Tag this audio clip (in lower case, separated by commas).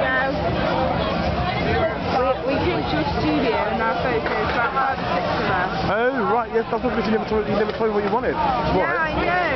speech